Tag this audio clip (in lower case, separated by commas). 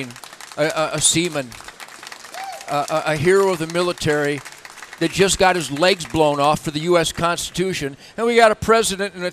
speech